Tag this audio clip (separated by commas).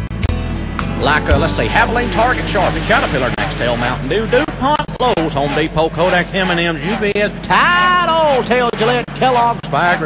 Speech